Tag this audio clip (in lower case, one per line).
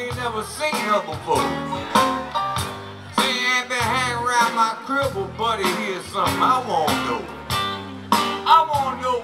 music